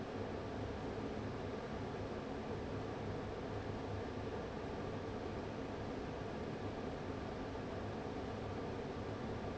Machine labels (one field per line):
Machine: fan